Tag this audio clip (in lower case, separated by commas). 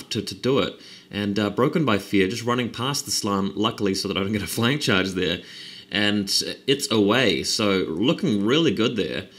speech